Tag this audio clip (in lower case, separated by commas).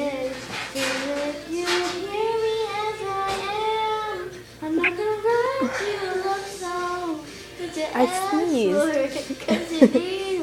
inside a small room, speech, singing